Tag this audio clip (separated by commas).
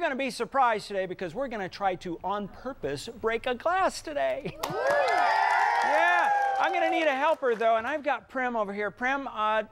Speech